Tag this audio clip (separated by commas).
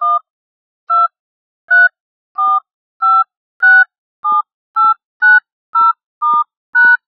Telephone, Alarm